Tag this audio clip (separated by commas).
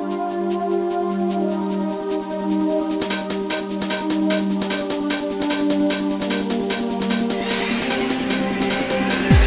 Music, Speech